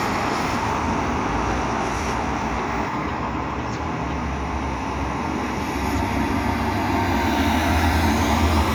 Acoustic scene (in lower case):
street